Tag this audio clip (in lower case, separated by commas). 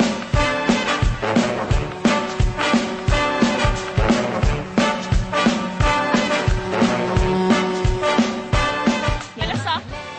music, speech